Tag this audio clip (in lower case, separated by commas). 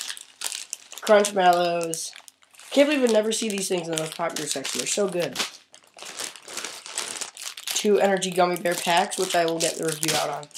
kid speaking